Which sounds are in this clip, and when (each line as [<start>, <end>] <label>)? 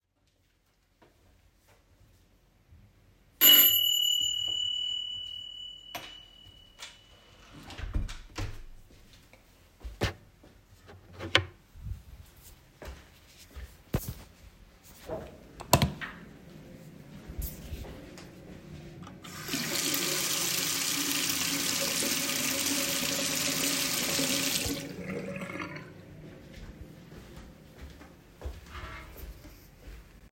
[3.25, 7.39] bell ringing
[5.79, 9.18] door
[12.23, 18.70] footsteps
[15.41, 16.40] light switch
[19.22, 26.08] running water
[26.26, 30.31] footsteps